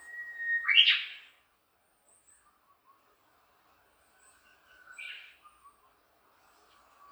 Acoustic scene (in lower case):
park